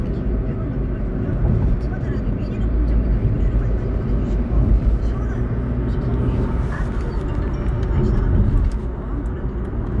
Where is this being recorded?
in a car